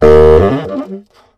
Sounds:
Music, woodwind instrument, Musical instrument

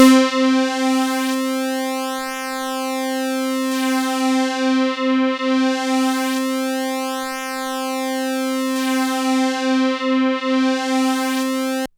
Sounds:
Keyboard (musical), Musical instrument, Music

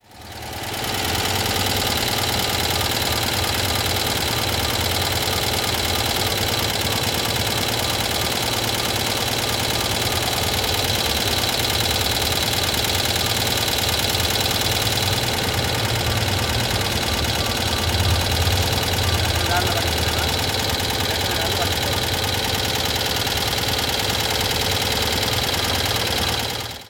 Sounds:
Engine, Idling

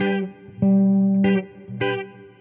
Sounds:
Electric guitar, Guitar, Music, Plucked string instrument, Musical instrument

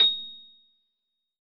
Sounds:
Keyboard (musical), Piano, Musical instrument, Music

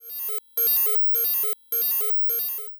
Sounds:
Alarm

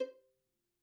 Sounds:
Musical instrument, Bowed string instrument, Music

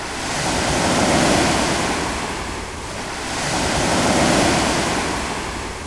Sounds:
Ocean, Water

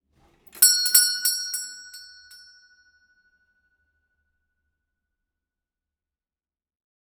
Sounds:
Door, Doorbell, Alarm, Domestic sounds

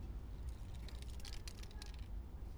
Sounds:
Wind

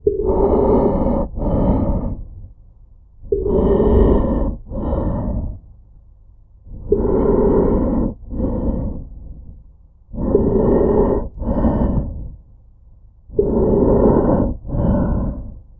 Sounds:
Breathing, Respiratory sounds

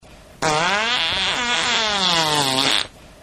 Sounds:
Fart

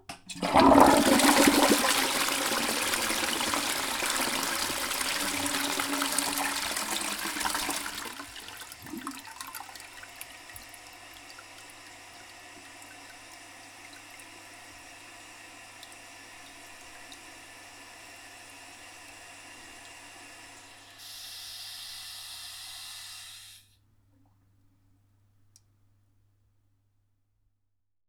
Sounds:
Toilet flush, Domestic sounds

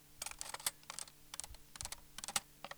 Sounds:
home sounds, Cutlery

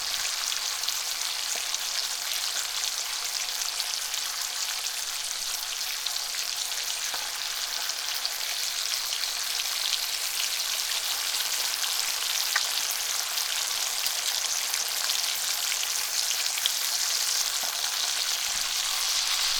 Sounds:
home sounds, Frying (food)

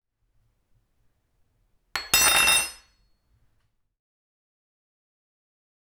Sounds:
home sounds, Cutlery

